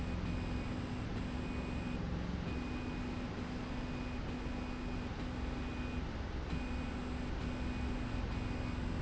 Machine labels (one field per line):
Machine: slide rail